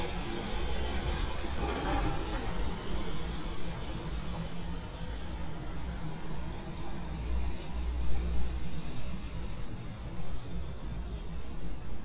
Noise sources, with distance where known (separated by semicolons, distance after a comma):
engine of unclear size